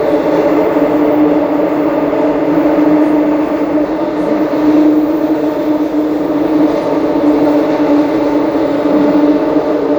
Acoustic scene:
subway train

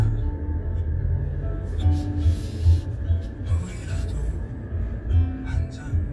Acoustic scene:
car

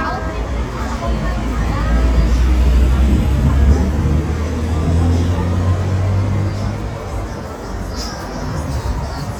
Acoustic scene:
street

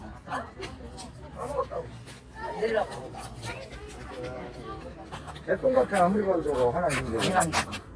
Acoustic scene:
park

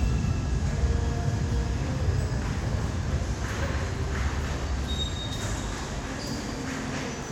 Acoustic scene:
subway station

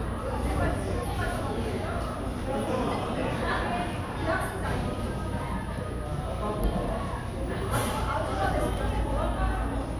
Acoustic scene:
cafe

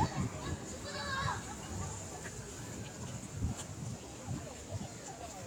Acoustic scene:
park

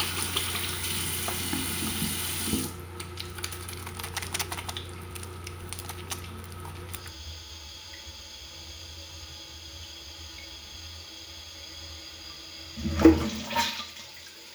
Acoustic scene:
restroom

